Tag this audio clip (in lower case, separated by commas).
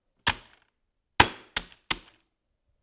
typing, home sounds, computer keyboard